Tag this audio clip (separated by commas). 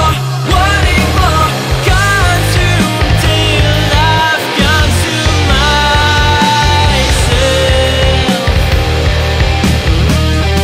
Grunge